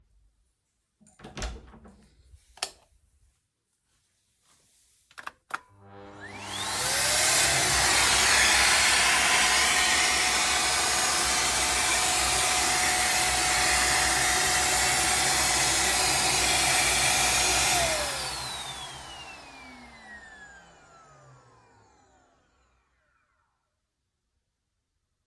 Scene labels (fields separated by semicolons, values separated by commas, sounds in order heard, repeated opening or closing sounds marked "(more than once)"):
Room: hallway; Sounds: door, light switch, vacuum cleaner